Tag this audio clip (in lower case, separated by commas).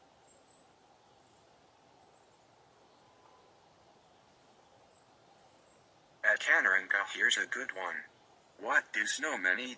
speech